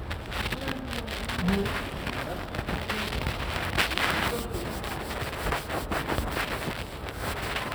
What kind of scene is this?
subway station